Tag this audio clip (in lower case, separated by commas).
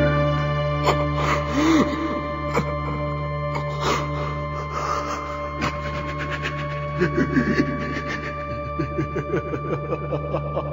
inside a small room, music